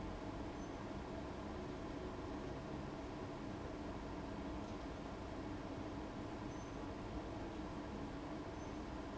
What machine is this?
fan